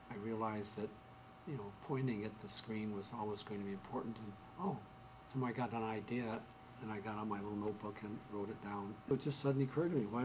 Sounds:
speech

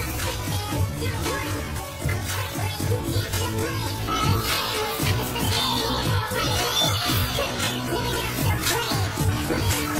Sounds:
music

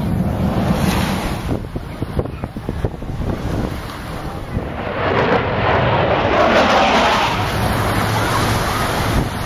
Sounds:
wind noise (microphone)
wind
wind noise

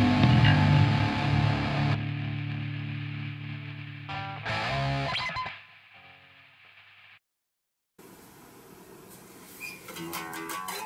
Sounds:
music
guitar

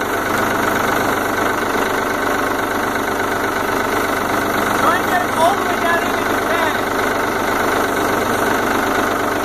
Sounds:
speech

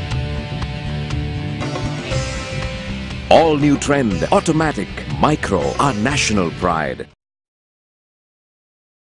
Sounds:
speech
music

